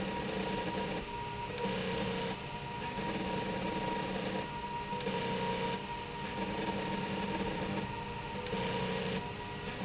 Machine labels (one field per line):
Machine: slide rail